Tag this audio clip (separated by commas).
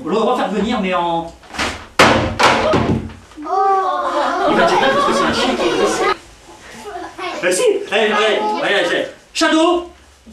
Speech